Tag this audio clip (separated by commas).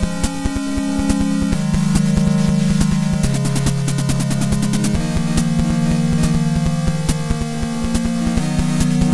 Music